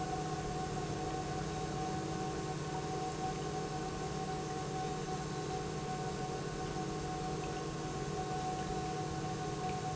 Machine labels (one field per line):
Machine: pump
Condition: normal